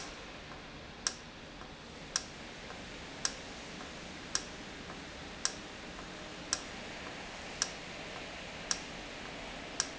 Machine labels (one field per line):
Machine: valve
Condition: normal